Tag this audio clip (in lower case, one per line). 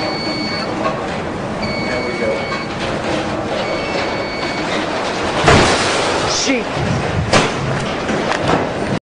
vehicle
speech